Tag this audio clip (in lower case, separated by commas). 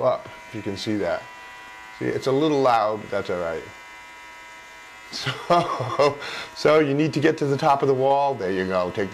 speech, inside a small room